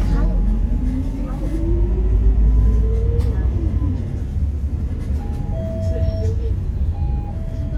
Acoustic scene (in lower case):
bus